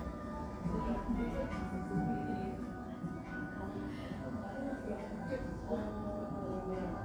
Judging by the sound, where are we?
in a cafe